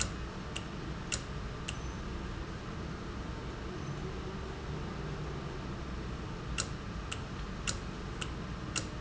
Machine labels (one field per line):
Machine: valve